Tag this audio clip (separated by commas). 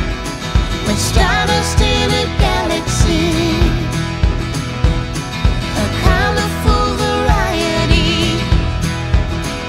Music